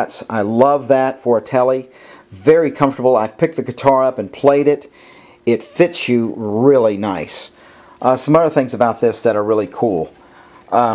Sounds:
Speech

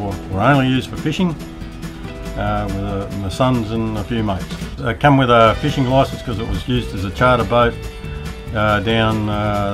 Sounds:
Music, Speech

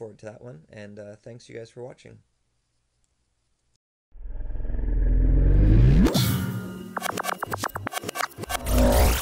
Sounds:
Speech

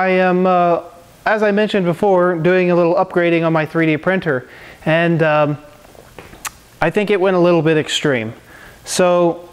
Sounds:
Speech

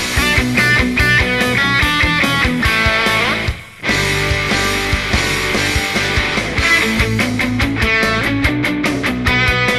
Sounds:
Music, Rock and roll

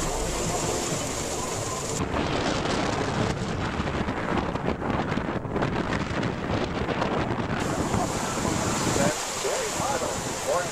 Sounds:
Vehicle, outside, rural or natural, Speech, Boat, Music

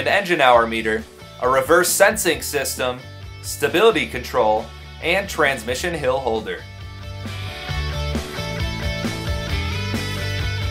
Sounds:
Speech, Music

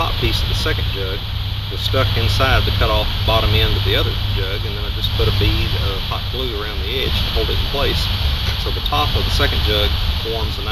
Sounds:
outside, urban or man-made, Speech

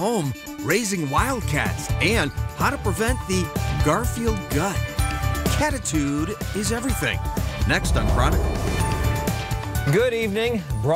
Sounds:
Speech, Music

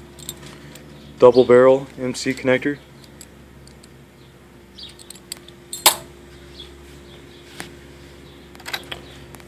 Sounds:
silverware

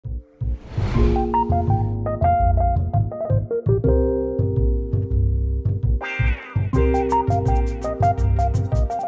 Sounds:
Synthesizer

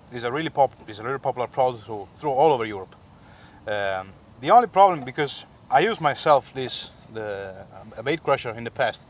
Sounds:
Speech

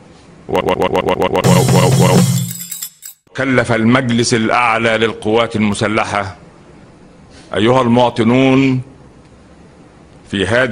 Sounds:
Speech, Music, man speaking, monologue

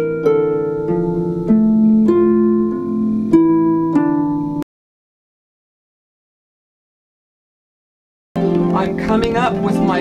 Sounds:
Music, Harp, Speech

